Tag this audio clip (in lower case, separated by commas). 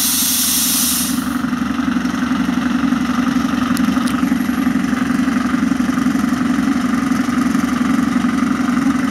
vehicle, railroad car, engine, heavy engine (low frequency), rail transport, train